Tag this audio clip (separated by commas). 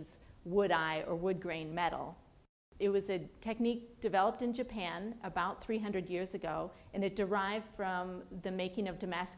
Speech